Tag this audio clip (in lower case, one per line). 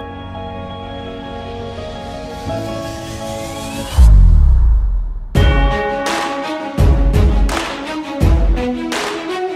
music